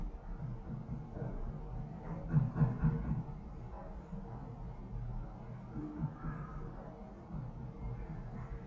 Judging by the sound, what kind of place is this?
elevator